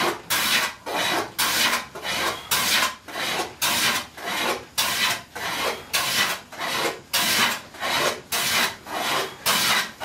Thrusting and rubbing back and forth against a wood